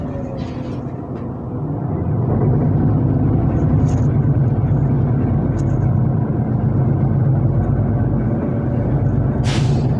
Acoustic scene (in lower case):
bus